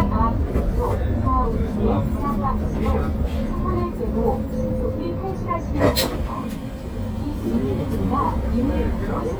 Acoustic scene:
bus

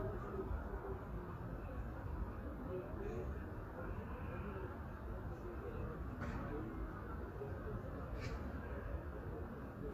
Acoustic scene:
residential area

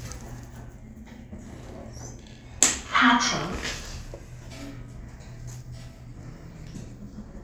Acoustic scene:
elevator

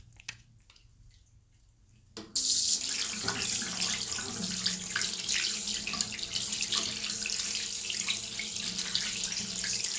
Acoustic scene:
restroom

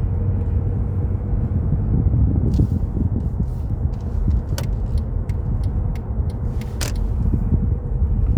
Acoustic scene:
car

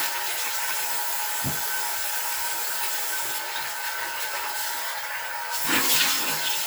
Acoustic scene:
restroom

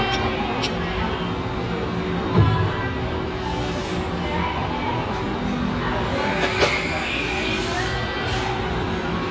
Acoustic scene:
restaurant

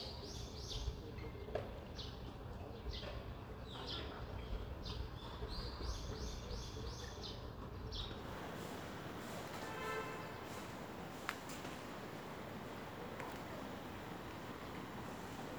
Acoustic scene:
residential area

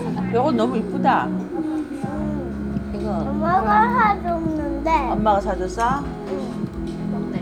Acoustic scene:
restaurant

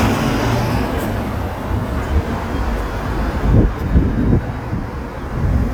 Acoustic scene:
street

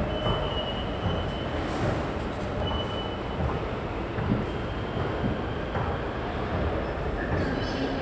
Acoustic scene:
subway station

